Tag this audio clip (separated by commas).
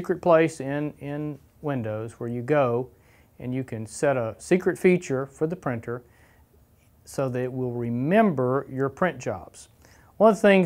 Speech